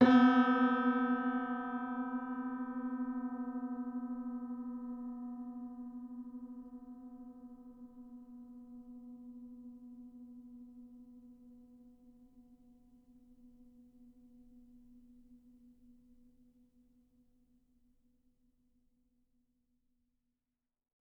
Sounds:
keyboard (musical)
music
piano
musical instrument

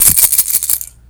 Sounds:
rattle (instrument)
music
musical instrument
percussion

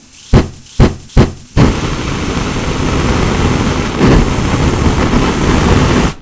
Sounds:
fire

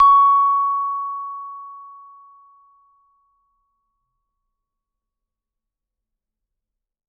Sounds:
mallet percussion
musical instrument
percussion
music

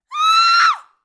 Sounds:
screaming
human voice

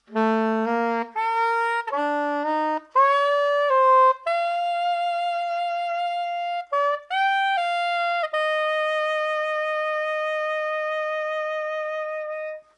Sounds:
woodwind instrument
music
musical instrument

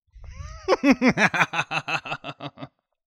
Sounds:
human voice
laughter

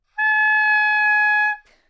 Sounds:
musical instrument
wind instrument
music

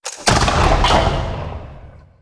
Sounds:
explosion

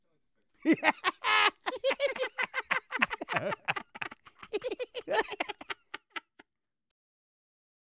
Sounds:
human voice
laughter

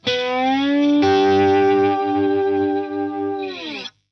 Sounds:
musical instrument
music
plucked string instrument
guitar

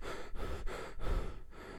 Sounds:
respiratory sounds
breathing

